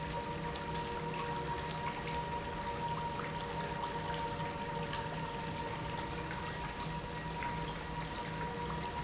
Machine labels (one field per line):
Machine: pump